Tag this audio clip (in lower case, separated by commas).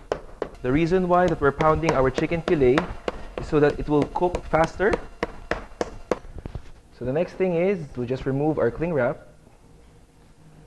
speech